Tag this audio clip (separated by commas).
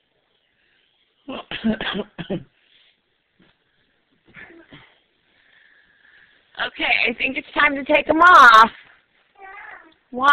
kid speaking, Speech